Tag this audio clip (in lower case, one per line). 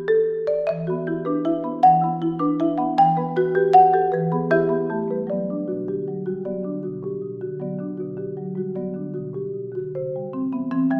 xylophone